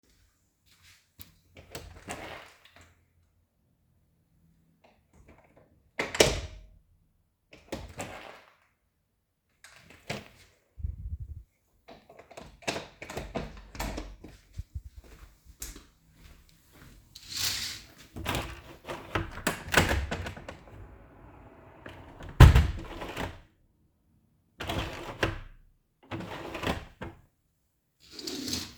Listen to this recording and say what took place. I entered the office and opened and closed the door a few times. After that I went to open the window but the hindge didn't open fully so I tried again.